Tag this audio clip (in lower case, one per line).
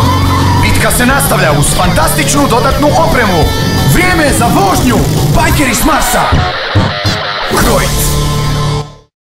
speech
music